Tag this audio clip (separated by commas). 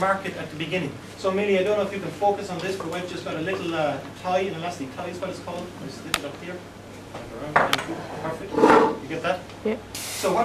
Speech